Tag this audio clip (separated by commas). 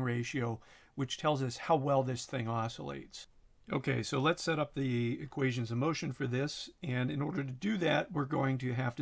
Speech